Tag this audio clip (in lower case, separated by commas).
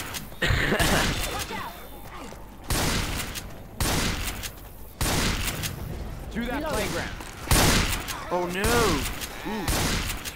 speech